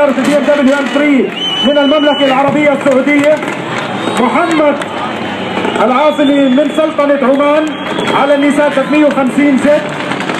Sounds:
Speech

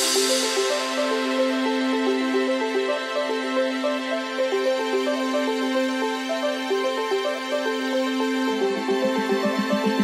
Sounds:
Music, Background music

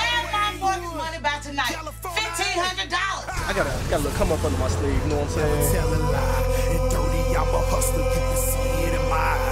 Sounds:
Music, Speech

